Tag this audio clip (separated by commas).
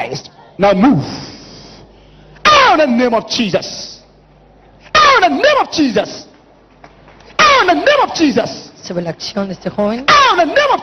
inside a large room or hall, Speech